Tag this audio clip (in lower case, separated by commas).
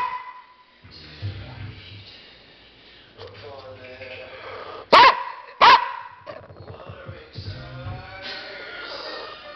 pets, music, animal, bark, dog, bow-wow, speech